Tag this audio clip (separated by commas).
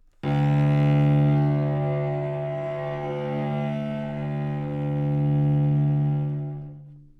Music, Bowed string instrument, Musical instrument